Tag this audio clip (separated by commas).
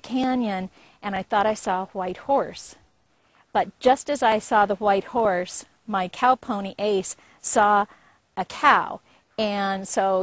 Speech